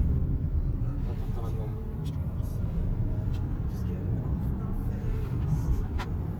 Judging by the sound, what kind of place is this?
car